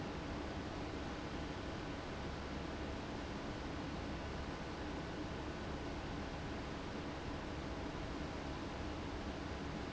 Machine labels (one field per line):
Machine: fan